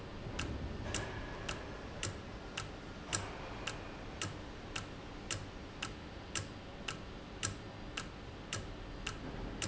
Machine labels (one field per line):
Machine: valve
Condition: normal